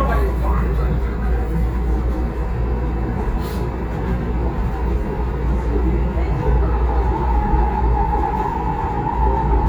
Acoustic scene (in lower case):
subway train